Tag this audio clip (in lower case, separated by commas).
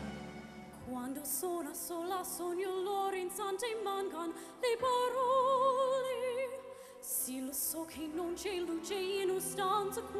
female singing, music